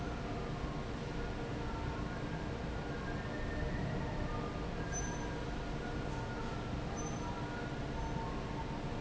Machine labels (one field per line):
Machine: fan